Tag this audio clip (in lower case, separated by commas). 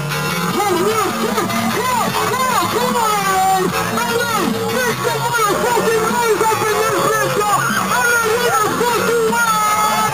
music, dubstep, electronic music